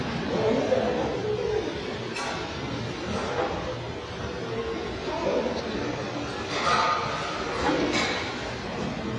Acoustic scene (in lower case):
restaurant